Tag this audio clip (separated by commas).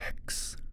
Whispering, Human voice